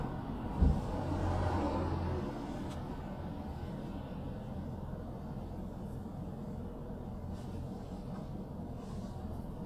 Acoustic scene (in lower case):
car